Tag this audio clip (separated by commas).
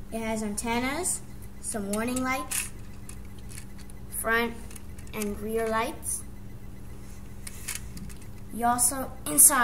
Speech